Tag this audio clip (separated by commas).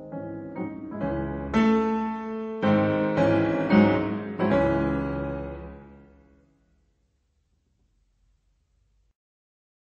Music